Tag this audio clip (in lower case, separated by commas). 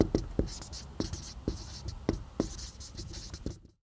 home sounds, writing